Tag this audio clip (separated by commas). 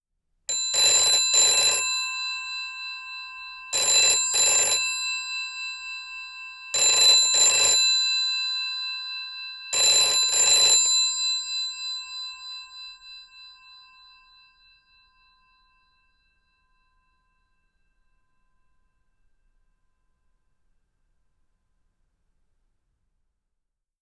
Telephone, Alarm